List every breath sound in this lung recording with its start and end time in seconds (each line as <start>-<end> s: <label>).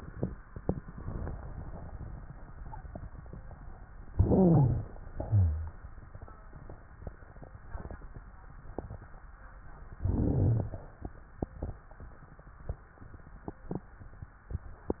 4.09-5.06 s: inhalation
4.09-5.06 s: wheeze
5.12-6.09 s: exhalation
9.96-10.87 s: inhalation